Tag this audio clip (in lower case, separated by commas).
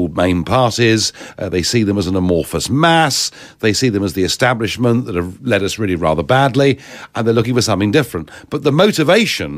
speech